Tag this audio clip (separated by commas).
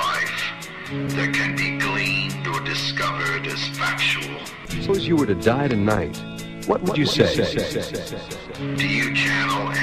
Speech, Music